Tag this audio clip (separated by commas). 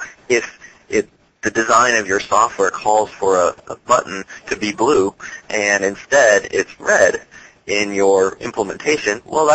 Speech